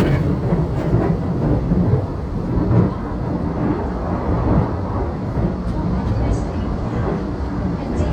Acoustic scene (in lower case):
subway train